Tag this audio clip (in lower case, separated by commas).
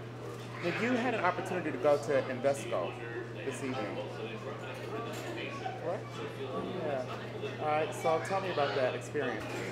speech, woman speaking, kid speaking, conversation, man speaking